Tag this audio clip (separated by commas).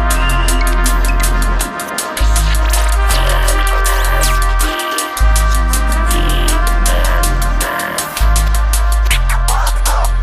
Music